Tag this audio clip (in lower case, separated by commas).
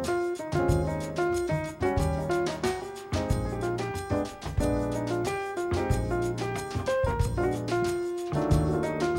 music